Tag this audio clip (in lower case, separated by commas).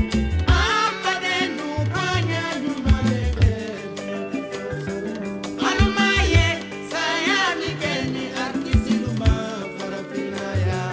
music, jazz